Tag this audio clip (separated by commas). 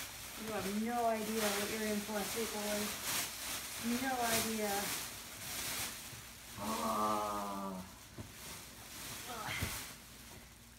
Speech